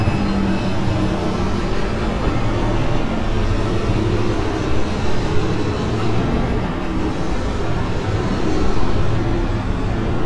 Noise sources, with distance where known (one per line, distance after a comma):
engine of unclear size